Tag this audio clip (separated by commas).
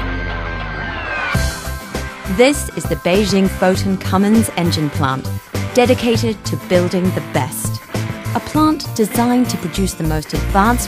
Speech, Music